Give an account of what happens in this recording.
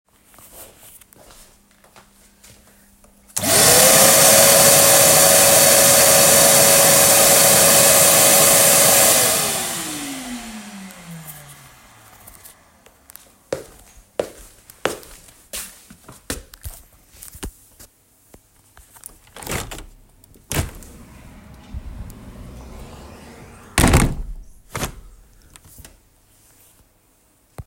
I turned on the vacuum cleaner, waited 4 seconds and turned it off again. I walked all the way to the window, opened it, and closed it again.